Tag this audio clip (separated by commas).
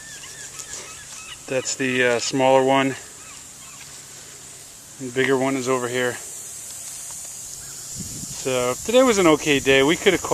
Animal, Speech